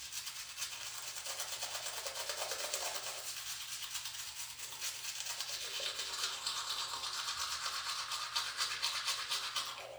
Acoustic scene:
restroom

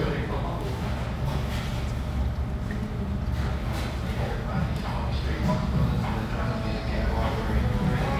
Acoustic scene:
restaurant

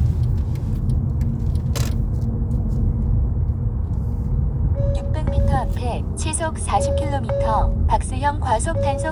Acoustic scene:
car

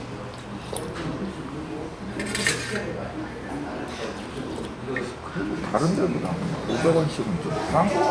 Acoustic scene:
crowded indoor space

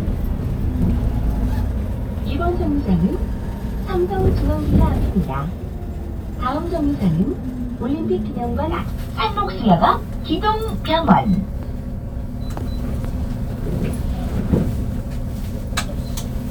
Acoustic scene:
bus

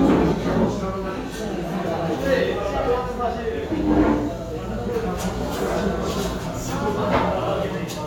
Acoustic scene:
crowded indoor space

